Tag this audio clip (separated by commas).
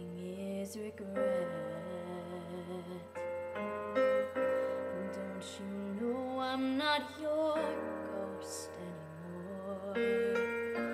Singing